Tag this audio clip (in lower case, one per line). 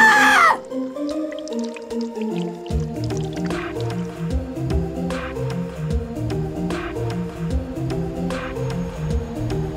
music